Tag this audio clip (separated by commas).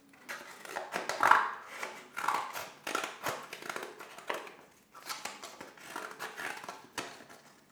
Scissors, Domestic sounds